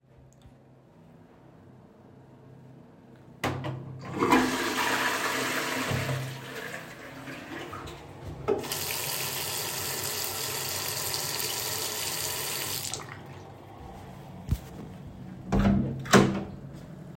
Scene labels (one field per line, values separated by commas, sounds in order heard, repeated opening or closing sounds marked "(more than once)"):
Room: bathroom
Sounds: toilet flushing, running water, door